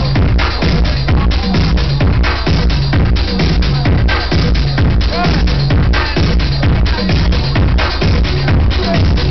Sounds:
Music, Speech

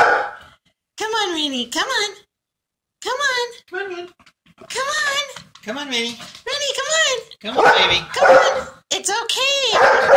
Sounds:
Bow-wow, Speech

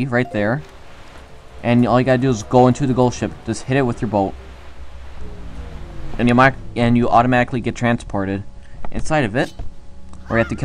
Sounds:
Speech

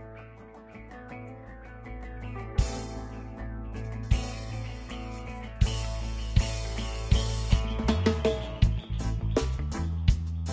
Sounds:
Music

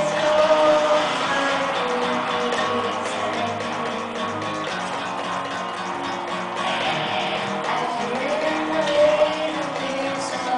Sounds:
Electric guitar, Musical instrument, Music, Guitar, Plucked string instrument

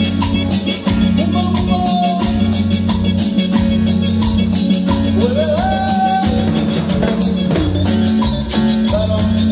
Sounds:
Singing, Music of Latin America, Music

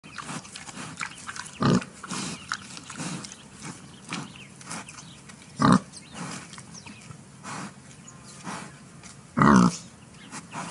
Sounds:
pig oinking

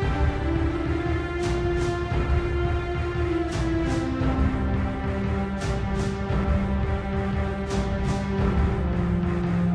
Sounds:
Music

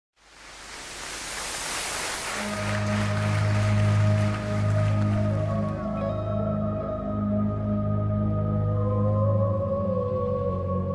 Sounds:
Music

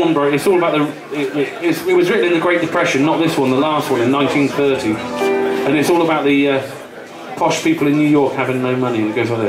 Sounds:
Speech, Music

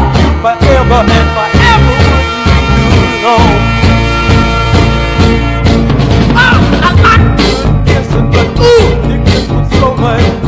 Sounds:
Music

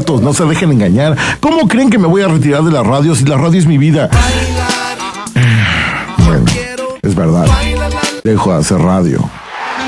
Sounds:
Speech, Radio, Music

